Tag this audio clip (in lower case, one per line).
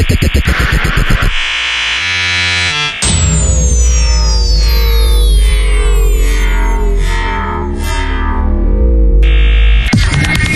electronic music
dubstep
music